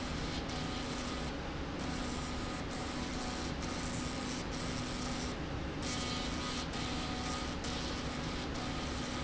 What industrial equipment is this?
slide rail